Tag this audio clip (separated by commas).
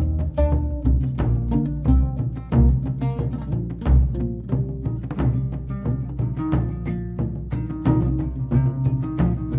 Music